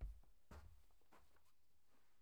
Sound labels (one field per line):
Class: footsteps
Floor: carpet